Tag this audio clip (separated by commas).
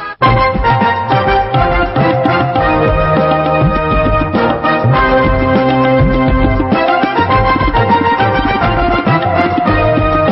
Music